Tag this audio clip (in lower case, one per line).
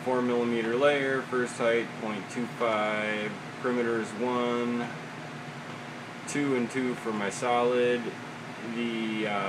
speech